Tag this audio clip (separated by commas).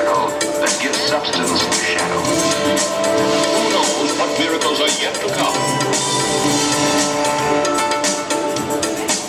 Opera